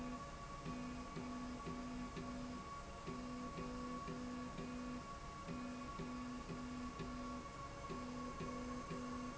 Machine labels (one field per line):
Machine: slide rail